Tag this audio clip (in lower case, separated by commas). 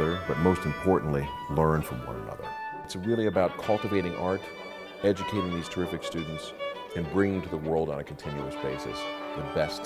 musical instrument, speech, violin, music